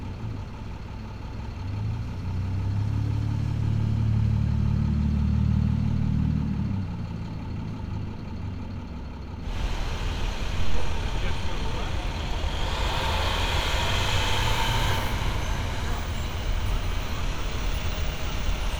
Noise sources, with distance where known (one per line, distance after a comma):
large-sounding engine